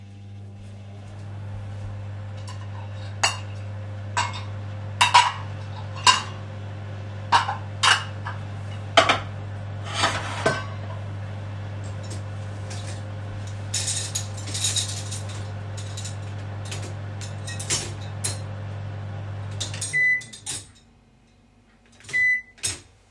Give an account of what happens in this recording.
I unloaded the dishes from the dishwasher while the microwave was running. At the end, you can hear the microwave beep when it's finished.